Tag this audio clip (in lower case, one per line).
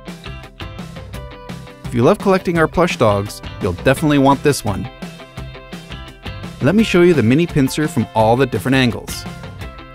speech
music